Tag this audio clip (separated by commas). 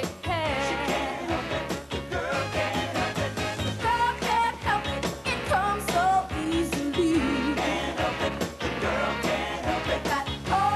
Singing, Music